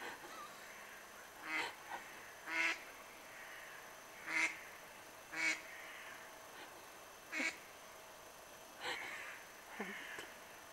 A bird is making noises in the distance